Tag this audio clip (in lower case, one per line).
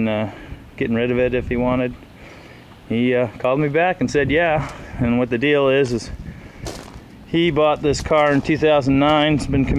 speech